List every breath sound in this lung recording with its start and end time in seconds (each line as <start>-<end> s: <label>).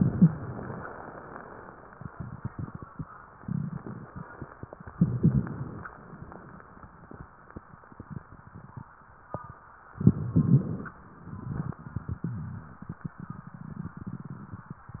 4.93-5.87 s: inhalation
4.93-5.87 s: crackles
5.91-8.91 s: exhalation
5.91-8.91 s: crackles
9.95-11.00 s: inhalation